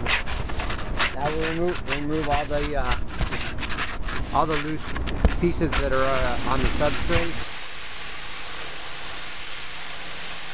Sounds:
speech

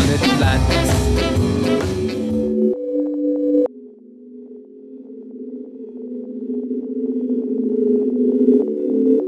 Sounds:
sine wave

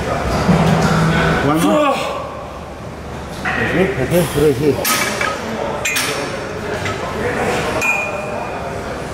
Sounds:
speech

